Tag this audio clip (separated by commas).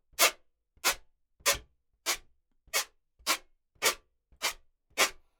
Squeak